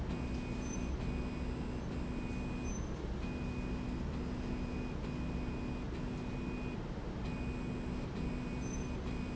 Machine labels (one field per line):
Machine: slide rail